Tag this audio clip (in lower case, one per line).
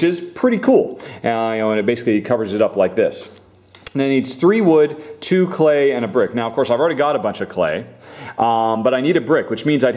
speech